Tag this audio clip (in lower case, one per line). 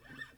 acoustic guitar
plucked string instrument
music
musical instrument
guitar